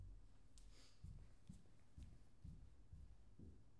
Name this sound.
footsteps